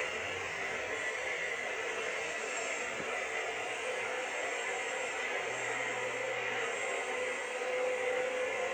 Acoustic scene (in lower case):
subway train